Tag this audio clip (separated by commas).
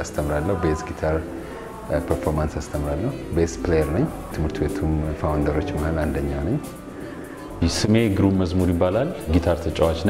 Soul music, Music, Speech